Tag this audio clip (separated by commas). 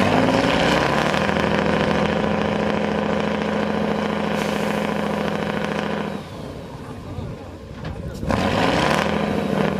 Truck, Vehicle